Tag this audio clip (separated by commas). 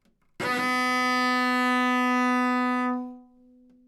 Music, Musical instrument, Bowed string instrument